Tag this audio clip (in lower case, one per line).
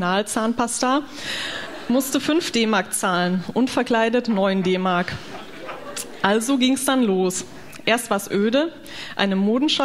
speech